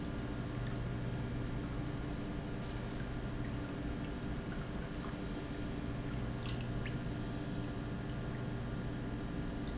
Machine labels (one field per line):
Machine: pump